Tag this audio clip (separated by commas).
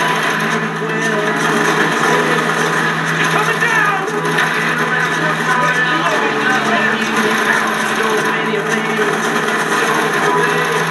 Speech, Music